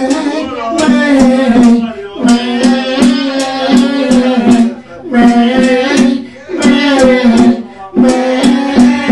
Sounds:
speech
music

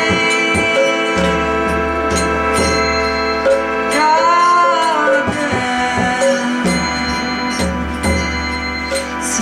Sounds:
music
mantra

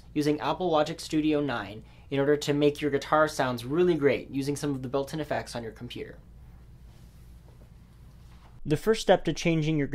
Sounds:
speech

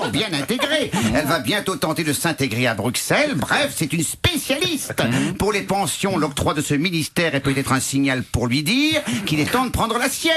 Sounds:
speech

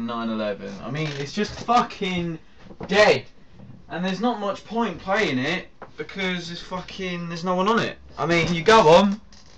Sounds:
speech

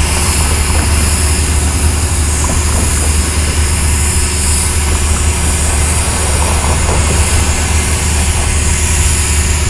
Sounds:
railroad car
train
rail transport

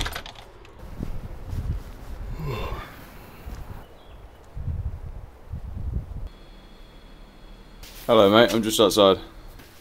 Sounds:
speech

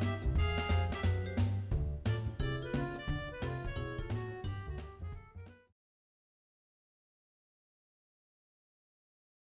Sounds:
music

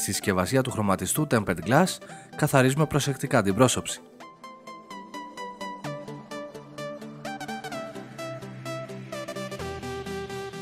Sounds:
music
speech

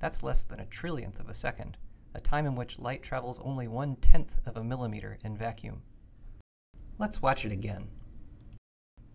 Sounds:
speech

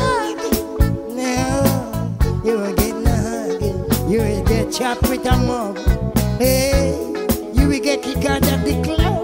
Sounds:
music
reggae

